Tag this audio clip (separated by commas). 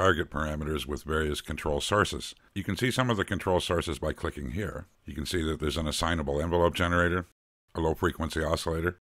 Speech